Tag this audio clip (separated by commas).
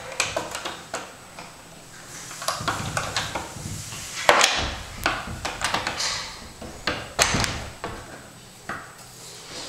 Door, Sliding door